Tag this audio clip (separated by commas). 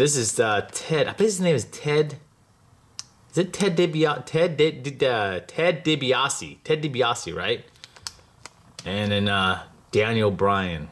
Speech